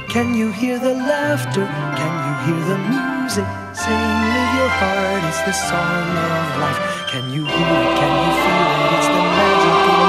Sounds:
music

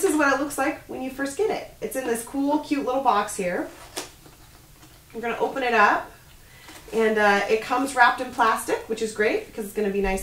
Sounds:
speech

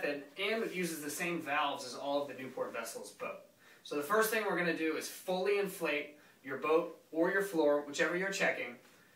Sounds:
speech

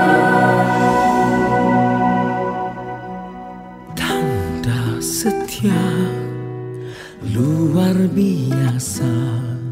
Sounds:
music

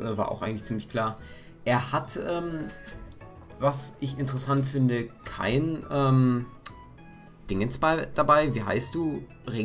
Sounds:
speech
music

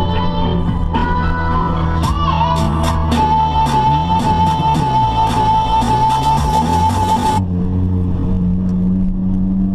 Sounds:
music

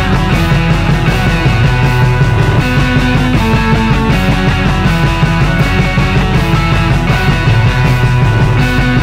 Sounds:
punk rock
music

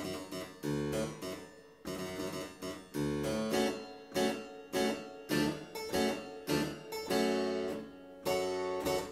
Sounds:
music
playing harpsichord
harpsichord

